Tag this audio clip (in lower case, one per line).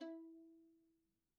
bowed string instrument
musical instrument
music